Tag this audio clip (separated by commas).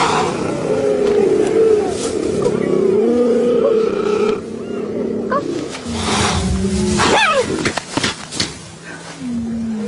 cheetah chirrup